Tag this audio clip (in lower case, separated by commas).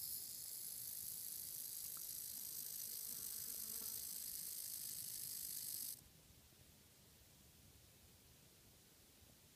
animal, snake